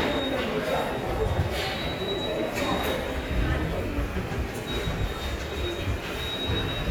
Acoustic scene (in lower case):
subway station